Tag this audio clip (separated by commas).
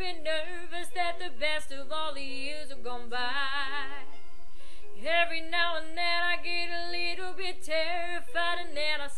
Music, Female singing